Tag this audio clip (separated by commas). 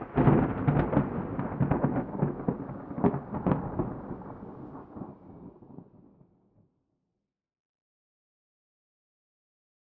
Thunder, Thunderstorm